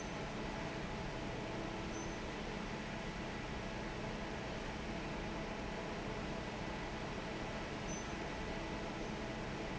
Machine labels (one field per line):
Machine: fan